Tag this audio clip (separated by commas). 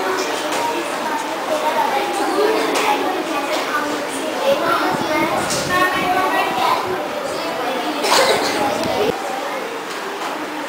Speech